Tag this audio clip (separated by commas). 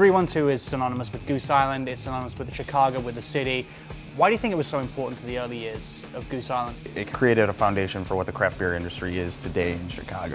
Speech, Music